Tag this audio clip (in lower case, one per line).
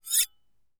domestic sounds
cutlery